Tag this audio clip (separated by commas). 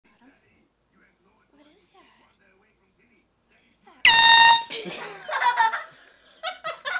Air horn, Speech